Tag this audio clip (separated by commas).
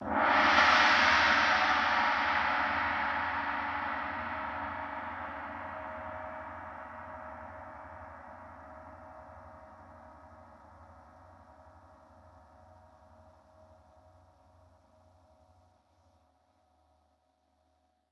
Musical instrument, Percussion, Gong, Music